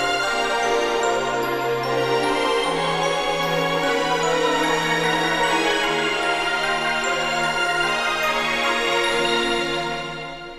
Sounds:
theme music, music

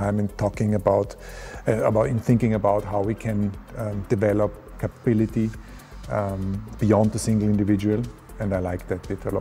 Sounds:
speech, music

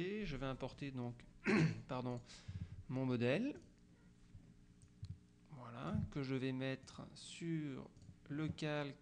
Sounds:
speech

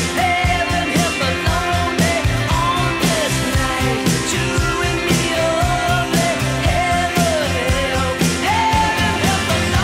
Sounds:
music, singing

